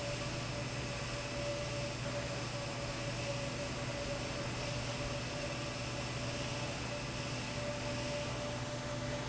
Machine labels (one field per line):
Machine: fan